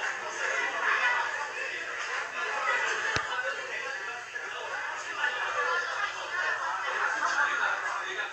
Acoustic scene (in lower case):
crowded indoor space